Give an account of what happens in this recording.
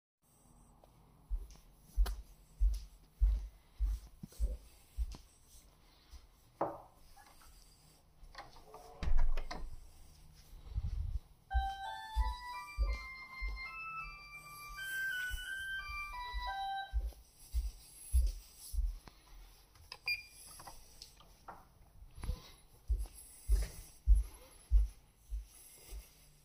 I went to the door. Then I opened it. Shortly after the door bell rang.